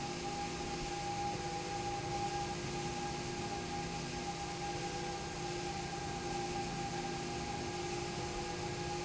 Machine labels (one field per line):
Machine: slide rail